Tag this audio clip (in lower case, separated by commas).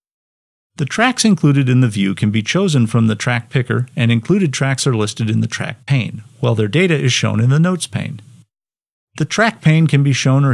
speech